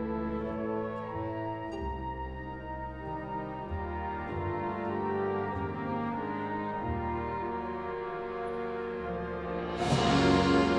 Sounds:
music

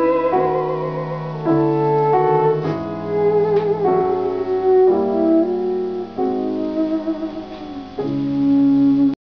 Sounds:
music

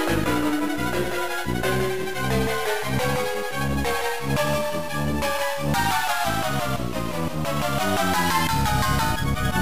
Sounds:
video game music, music

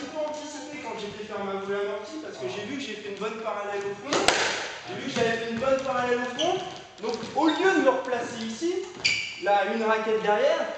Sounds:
playing squash

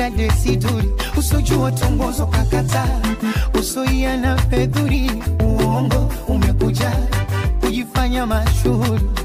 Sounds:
music, music of africa

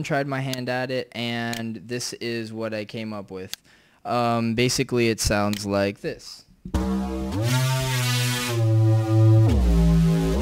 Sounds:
speech, music, musical instrument

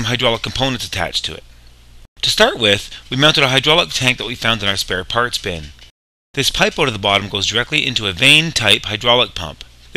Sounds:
speech

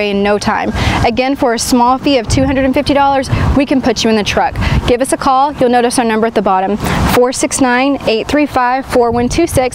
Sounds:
speech

